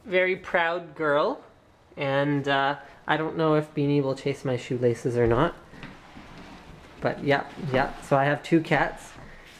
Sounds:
Speech

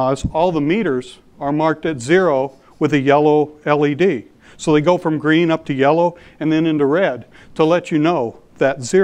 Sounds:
Speech

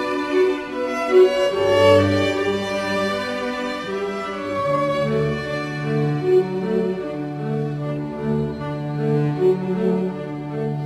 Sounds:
Music

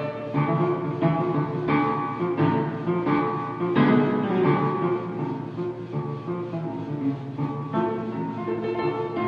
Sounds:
Soundtrack music, Music

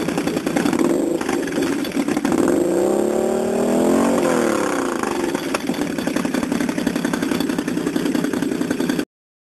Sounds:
Rattle

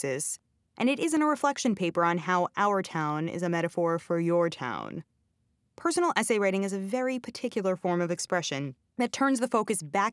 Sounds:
Speech

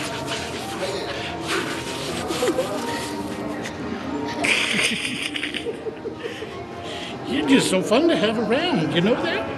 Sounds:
Music, Speech

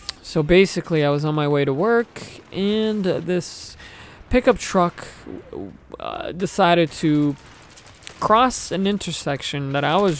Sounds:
Speech

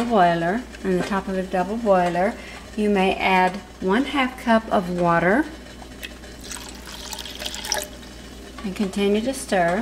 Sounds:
inside a small room, Speech

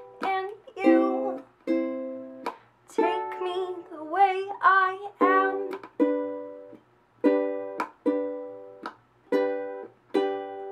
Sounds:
Ukulele, Music, inside a small room, Musical instrument

